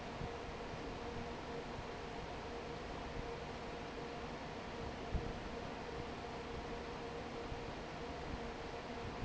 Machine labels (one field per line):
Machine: fan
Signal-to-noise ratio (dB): 6 dB